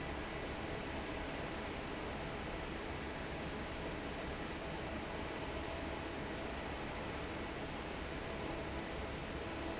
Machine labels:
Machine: fan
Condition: normal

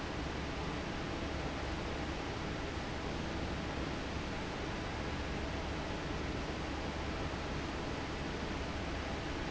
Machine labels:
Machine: fan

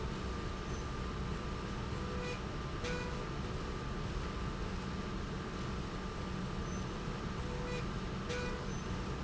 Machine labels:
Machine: slide rail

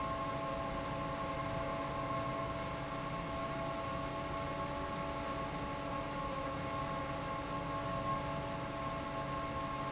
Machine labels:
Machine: fan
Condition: normal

